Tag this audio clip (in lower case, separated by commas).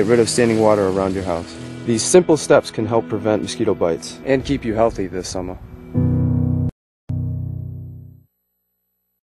speech, music